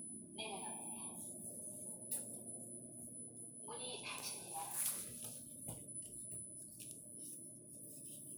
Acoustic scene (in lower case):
elevator